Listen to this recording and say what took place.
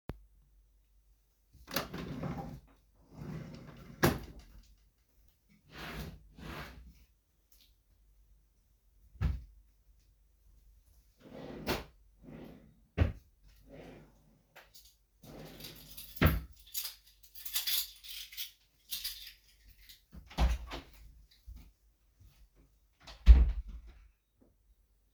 I opened and closed a drawer, then another one, then I went to the night table. Then I again opened and closed a drawer, then opened another one, found my keys, closed the drawer, and left the room.